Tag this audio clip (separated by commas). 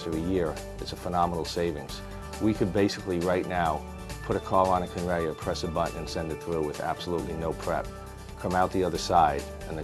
Music, Speech